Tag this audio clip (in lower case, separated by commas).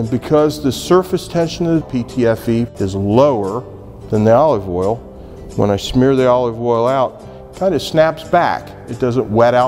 speech, music